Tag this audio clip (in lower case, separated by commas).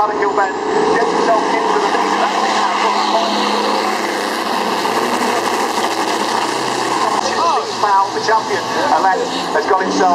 vehicle, speech, truck